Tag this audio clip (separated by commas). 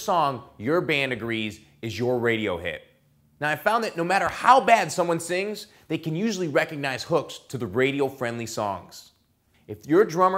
Speech